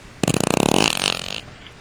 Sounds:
fart

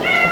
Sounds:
cat, animal, pets, meow

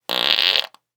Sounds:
fart

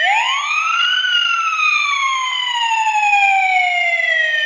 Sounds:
alarm, siren

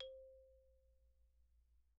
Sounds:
mallet percussion, marimba, musical instrument, music, percussion

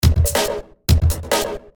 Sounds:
human voice, speech, man speaking

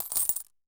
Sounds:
home sounds, coin (dropping)

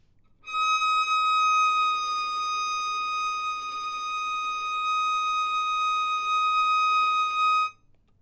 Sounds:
music, musical instrument, bowed string instrument

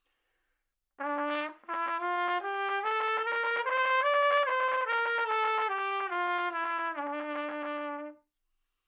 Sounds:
trumpet, brass instrument, musical instrument, music

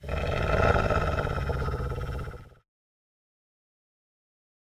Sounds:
growling, animal

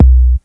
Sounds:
drum, music, thump, percussion, bass drum, musical instrument

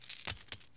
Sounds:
domestic sounds, coin (dropping)

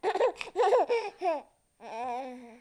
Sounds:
human voice, laughter

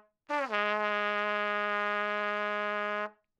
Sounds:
music, musical instrument, brass instrument, trumpet

